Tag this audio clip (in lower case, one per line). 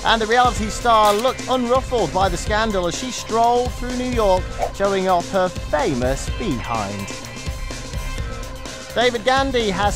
music
speech